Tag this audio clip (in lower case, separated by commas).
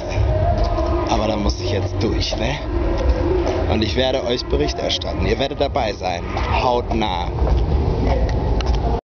speech, music